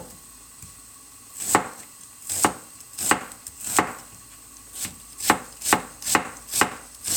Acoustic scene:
kitchen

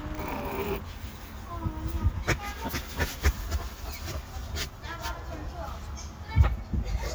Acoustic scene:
park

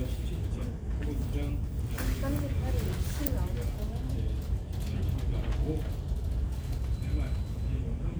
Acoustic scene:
crowded indoor space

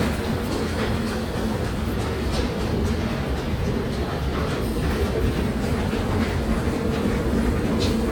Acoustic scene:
subway station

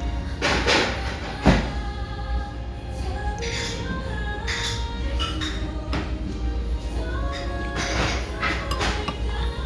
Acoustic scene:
restaurant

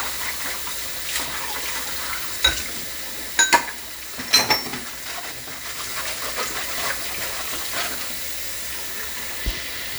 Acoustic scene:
kitchen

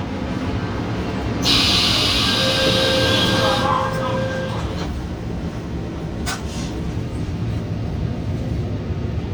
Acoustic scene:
subway train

